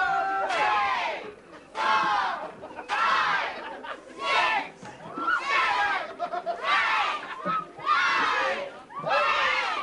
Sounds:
Speech

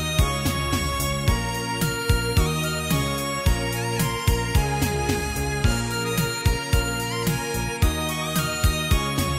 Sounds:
Music

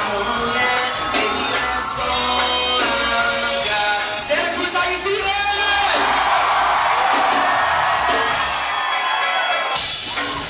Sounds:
Speech, Music, Cheering

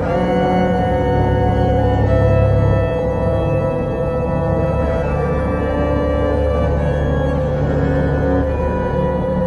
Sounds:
outside, rural or natural, Music

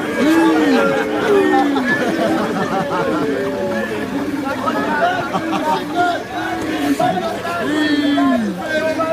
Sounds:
Speech

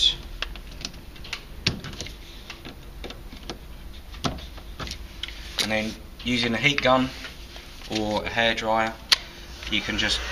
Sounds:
Speech

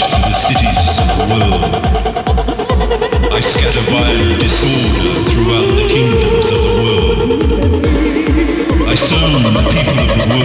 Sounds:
Music, Speech

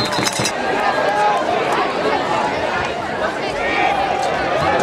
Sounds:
Speech

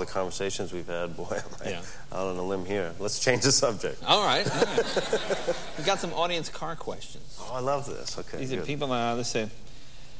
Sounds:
Speech

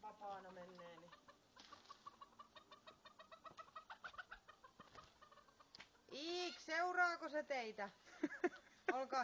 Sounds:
Speech, Fowl, Animal

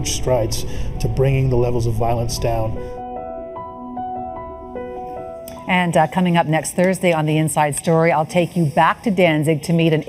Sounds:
inside a small room, Speech, Music

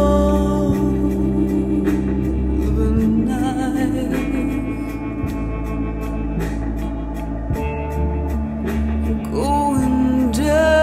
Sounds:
Music

